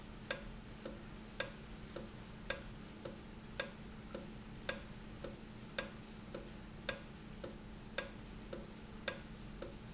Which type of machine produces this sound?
valve